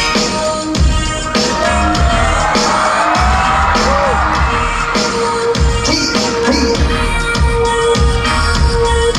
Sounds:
Music

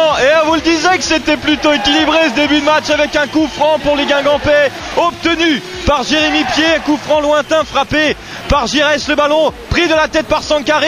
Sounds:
Speech

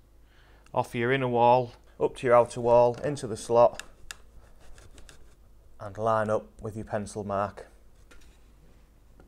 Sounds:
Speech

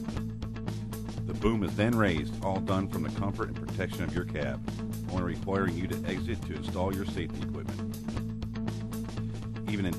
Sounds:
Speech, Music

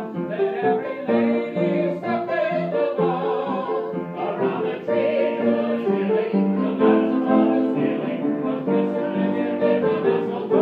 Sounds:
Opera, Singing, Music

